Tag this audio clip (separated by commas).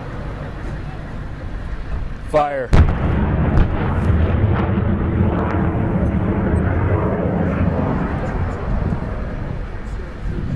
missile launch